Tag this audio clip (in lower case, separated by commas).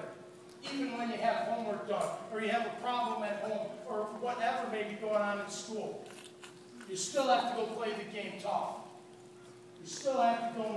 male speech, speech